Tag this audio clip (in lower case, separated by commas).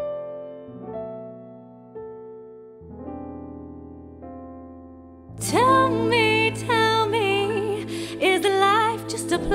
music